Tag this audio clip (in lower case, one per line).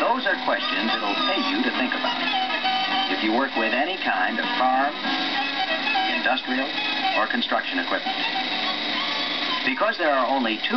speech
music